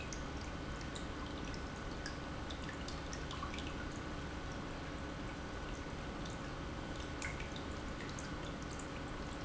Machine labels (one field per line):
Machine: pump